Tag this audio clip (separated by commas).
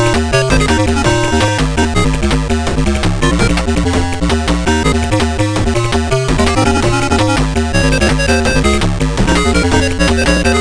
Music, Background music